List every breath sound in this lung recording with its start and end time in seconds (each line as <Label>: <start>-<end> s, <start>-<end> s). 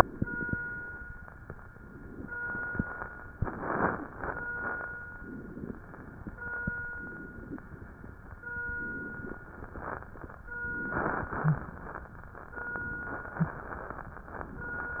Inhalation: 0.00-0.54 s, 1.71-2.40 s, 3.37-4.14 s, 5.19-5.83 s, 6.94-7.61 s, 8.74-9.40 s, 10.64-11.31 s, 12.58-13.36 s
Exhalation: 2.40-3.29 s, 4.16-4.92 s, 5.83-6.74 s, 7.61-8.64 s, 9.40-10.42 s, 11.33-12.21 s, 13.37-14.25 s
Crackles: 2.40-3.29 s, 3.37-4.14 s, 4.16-4.92 s, 5.83-6.74 s, 7.61-8.64 s, 9.40-10.42 s, 10.64-11.31 s, 11.33-12.21 s, 12.58-13.36 s, 13.37-14.25 s